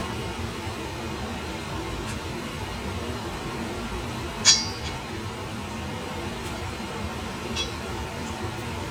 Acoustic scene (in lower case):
kitchen